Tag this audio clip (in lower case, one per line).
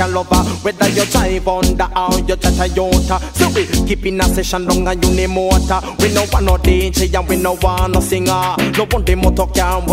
music